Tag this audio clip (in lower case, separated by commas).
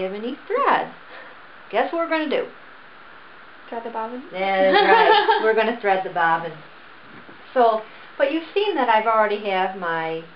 speech, inside a small room